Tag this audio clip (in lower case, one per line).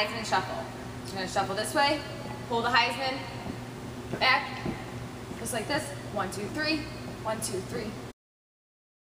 speech